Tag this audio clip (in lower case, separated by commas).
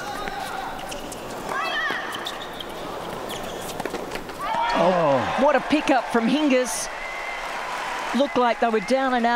playing tennis